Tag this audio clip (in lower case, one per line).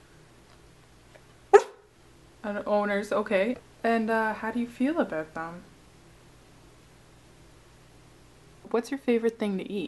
domestic animals
bow-wow
animal
dog
speech